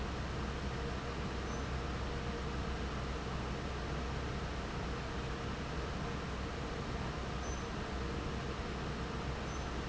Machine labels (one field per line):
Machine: fan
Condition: normal